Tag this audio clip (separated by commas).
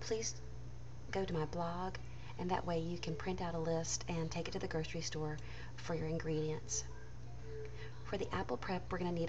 Speech